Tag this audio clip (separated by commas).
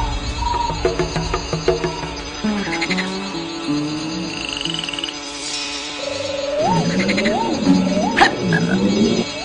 Music